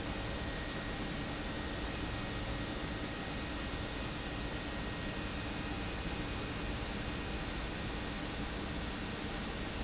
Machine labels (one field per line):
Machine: pump